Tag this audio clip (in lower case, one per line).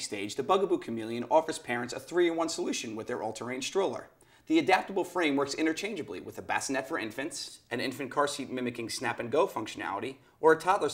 speech